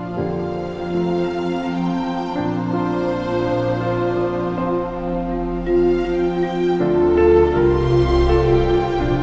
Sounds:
Music, Speech

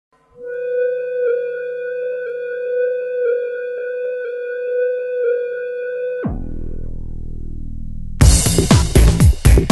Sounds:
Singing bowl, Music

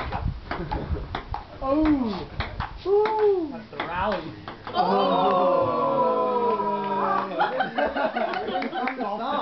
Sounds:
Speech

